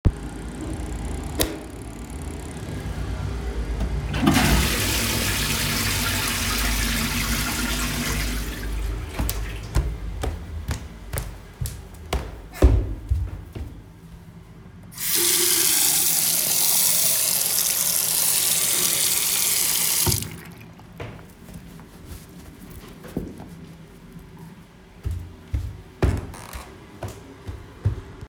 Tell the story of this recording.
I entered and turned on the light in the bathroom. I flushed the toilet. I washed my hands with soap and dried them with a towell. I turned off the light and walked out of the bathroom .